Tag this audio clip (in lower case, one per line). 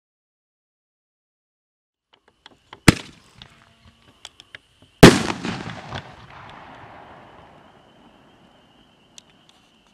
fireworks banging